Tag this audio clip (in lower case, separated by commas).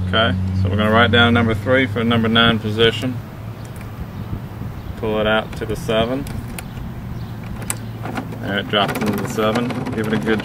vehicle, speech